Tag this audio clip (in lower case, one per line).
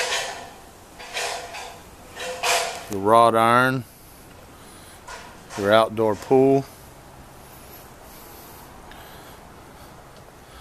speech